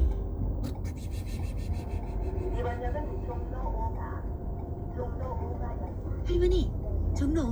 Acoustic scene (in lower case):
car